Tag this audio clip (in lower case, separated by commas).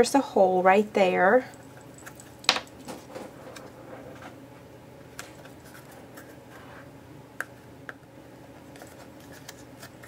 speech